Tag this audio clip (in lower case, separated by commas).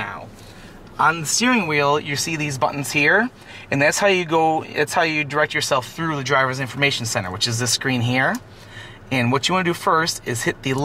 speech